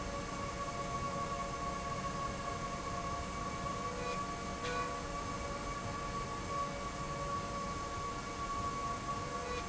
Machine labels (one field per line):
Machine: slide rail